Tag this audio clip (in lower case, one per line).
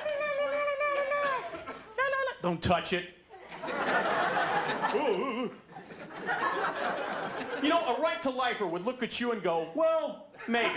speech
laughter